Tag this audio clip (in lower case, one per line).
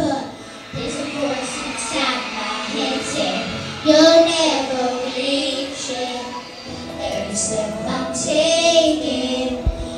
child singing
music